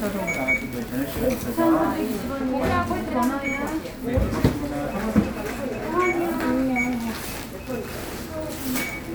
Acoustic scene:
crowded indoor space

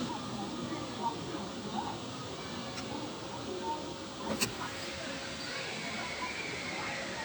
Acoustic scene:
park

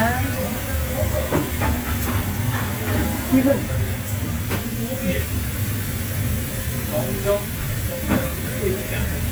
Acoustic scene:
restaurant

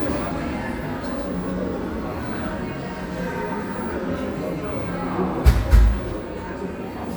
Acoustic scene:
cafe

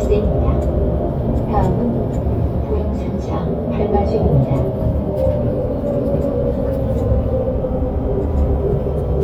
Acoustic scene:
bus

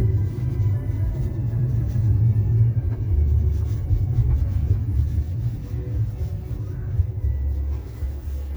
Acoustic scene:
car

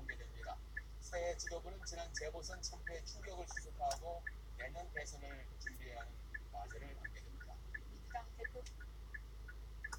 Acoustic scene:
car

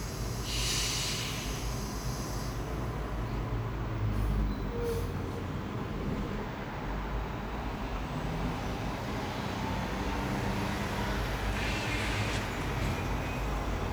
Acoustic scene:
street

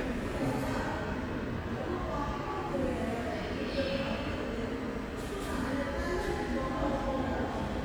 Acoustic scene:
subway station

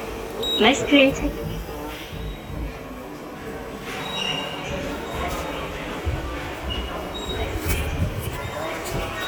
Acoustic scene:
subway station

